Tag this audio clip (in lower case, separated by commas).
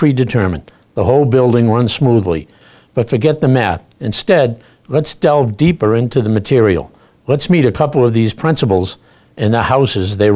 speech